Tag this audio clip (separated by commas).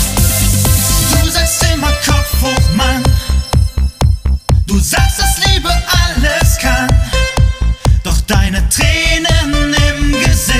Disco, Music